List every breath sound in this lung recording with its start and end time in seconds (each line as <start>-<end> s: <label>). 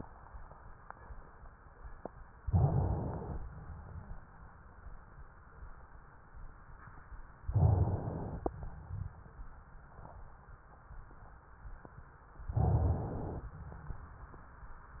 2.44-3.38 s: inhalation
7.52-8.56 s: inhalation
12.54-13.51 s: inhalation